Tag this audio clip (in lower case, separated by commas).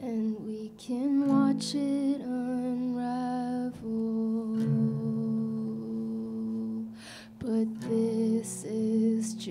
singing, music